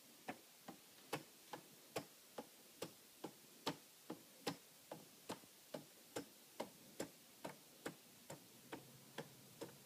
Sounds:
Tick-tock, Tick

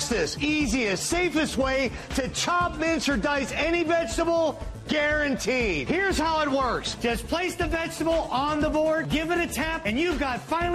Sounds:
Music, Speech

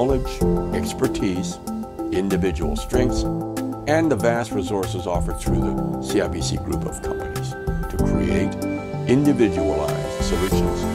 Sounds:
Speech, Music

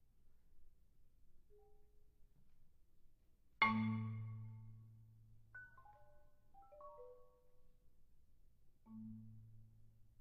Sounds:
playing marimba, Percussion, Music, xylophone, Musical instrument

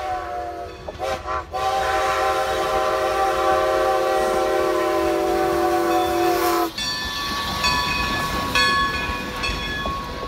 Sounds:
train whistling

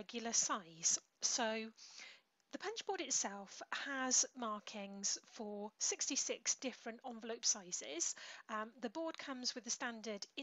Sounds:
Speech

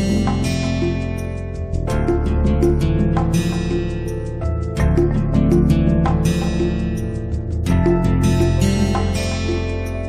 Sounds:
Music

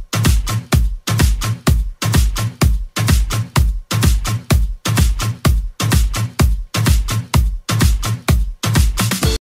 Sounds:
Music

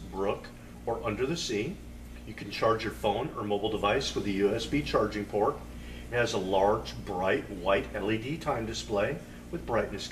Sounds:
Speech

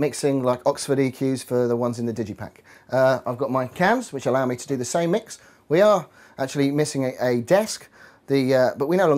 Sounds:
Speech

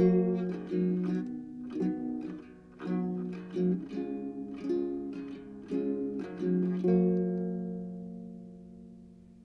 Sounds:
Musical instrument, playing acoustic guitar, Plucked string instrument, Guitar, Music, Acoustic guitar

